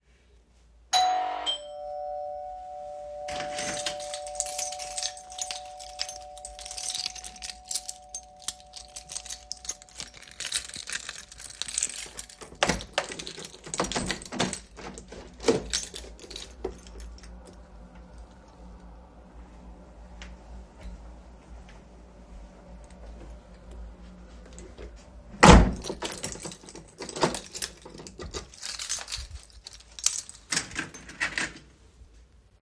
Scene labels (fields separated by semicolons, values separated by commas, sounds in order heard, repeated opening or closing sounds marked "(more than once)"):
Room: living room; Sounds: bell ringing, keys, door (more than once)